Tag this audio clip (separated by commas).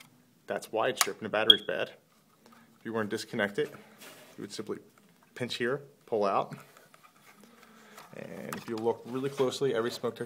Speech